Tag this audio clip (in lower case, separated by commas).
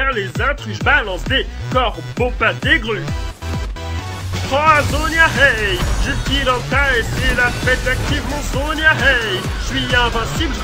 music, musical instrument